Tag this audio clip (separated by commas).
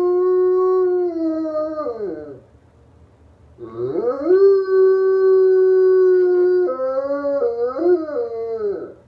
pets, canids, Animal, Dog, Howl